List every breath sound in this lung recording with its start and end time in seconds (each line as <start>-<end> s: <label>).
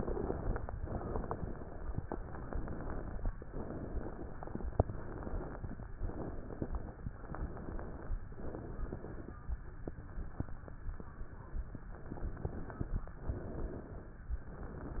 0.00-0.68 s: exhalation
0.82-1.99 s: inhalation
2.07-3.23 s: exhalation
3.46-4.70 s: inhalation
4.76-5.87 s: exhalation
5.99-7.09 s: inhalation
7.12-8.18 s: exhalation
8.32-9.39 s: inhalation
11.92-13.09 s: exhalation
13.17-14.27 s: inhalation
14.40-15.00 s: exhalation